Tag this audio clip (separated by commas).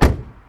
Door, Slam, Car, Motor vehicle (road), Domestic sounds, Vehicle